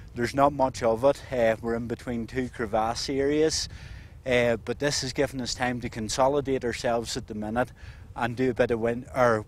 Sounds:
Speech

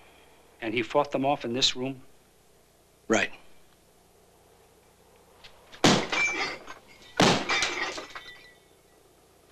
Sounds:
inside a small room, clink, Speech

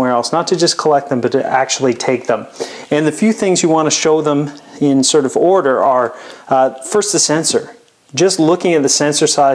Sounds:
Speech

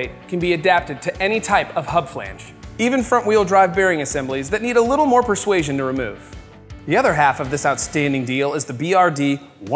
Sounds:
Music, Speech

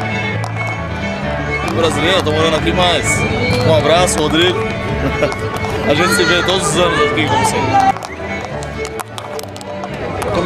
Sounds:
Speech, Music

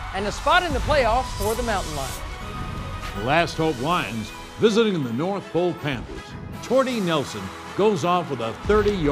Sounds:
Speech, Music

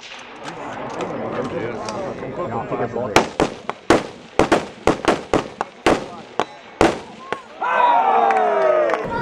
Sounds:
Speech, outside, rural or natural

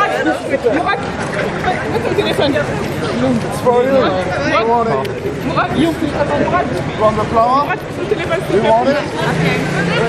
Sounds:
speech babble, Speech, outside, urban or man-made

